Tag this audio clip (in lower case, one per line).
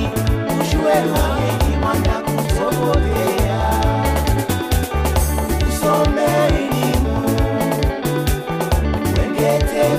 music
happy music